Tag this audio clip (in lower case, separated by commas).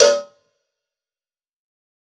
bell, cowbell